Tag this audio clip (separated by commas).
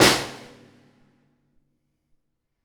Drum, Music, Snare drum, Musical instrument, Percussion